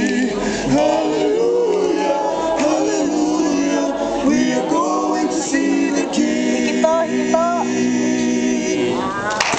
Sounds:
male singing, speech

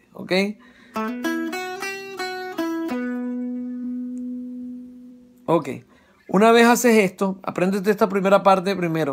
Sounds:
speech, plucked string instrument, guitar, musical instrument, electronic tuner, music, electric guitar

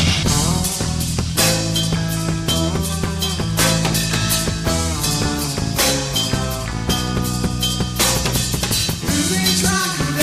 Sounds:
music, rimshot

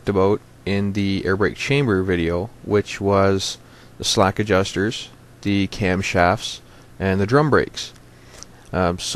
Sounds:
speech

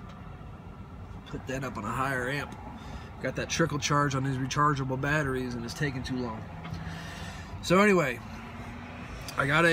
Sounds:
speech, vehicle

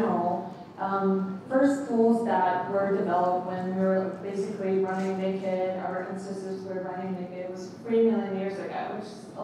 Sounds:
speech

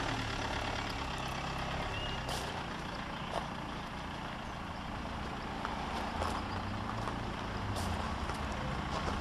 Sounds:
medium engine (mid frequency), vehicle, engine

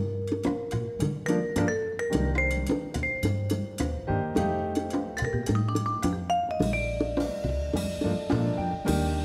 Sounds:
playing vibraphone

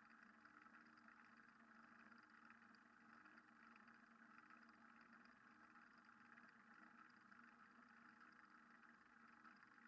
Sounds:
silence

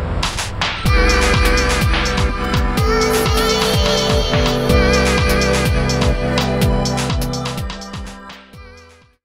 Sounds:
soundtrack music, background music, music

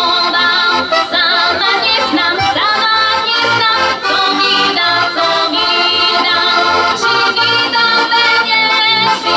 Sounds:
accordion, music, musical instrument

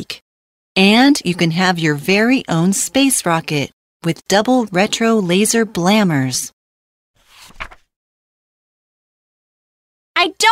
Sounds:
speech

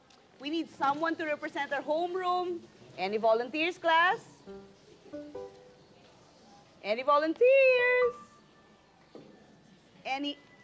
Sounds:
music, speech

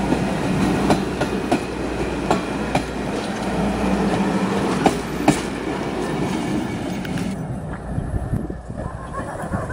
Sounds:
train whistling

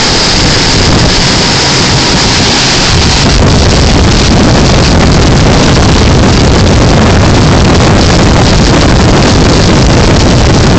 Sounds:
sailing ship

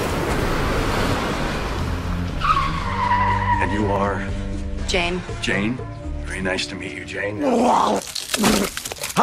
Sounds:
music, speech

